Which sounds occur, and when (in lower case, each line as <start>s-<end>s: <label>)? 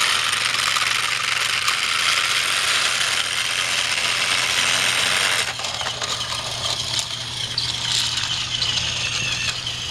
0.0s-9.9s: mechanisms